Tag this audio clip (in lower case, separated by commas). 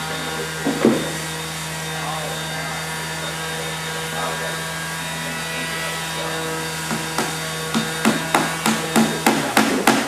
speech